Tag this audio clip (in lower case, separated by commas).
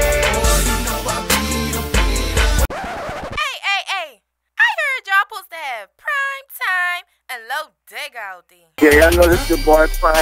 country, music, speech